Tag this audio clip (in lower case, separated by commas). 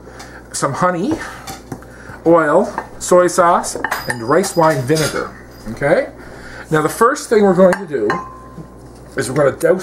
speech